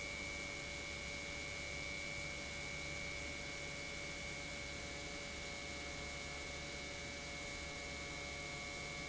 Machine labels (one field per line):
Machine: pump